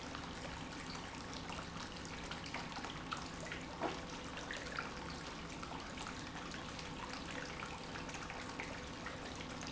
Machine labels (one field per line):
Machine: pump